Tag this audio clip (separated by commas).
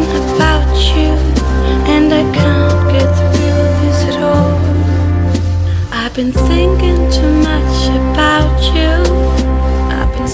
Music